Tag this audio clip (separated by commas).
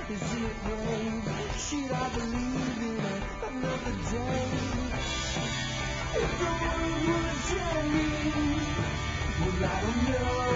Music